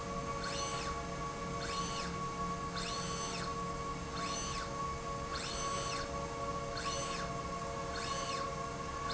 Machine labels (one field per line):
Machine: slide rail